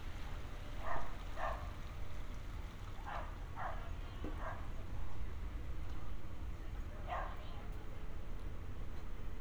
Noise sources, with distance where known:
dog barking or whining, far

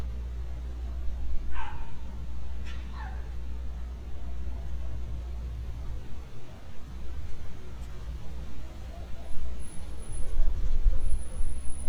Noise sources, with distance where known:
dog barking or whining, near

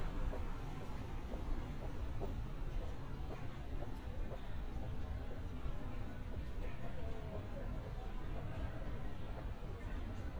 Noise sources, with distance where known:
background noise

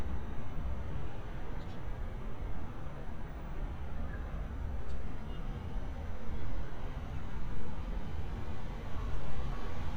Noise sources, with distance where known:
medium-sounding engine

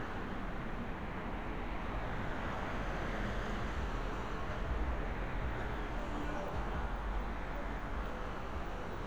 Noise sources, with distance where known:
engine of unclear size

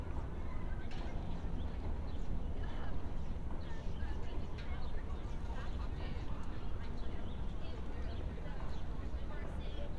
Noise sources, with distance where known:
person or small group talking, far

